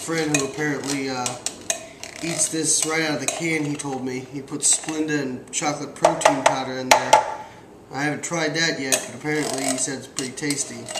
A man talks while dishes bang together and something bangs